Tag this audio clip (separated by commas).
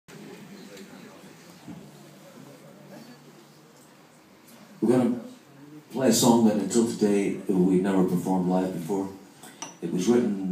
Speech